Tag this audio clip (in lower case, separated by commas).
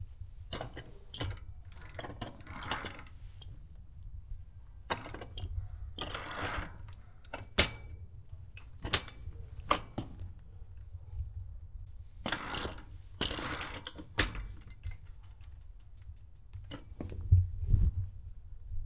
vehicle, bicycle